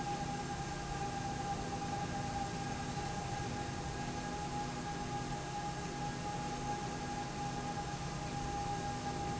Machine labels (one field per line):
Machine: slide rail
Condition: normal